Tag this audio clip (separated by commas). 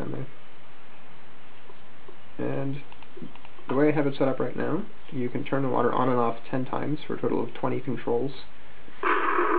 Speech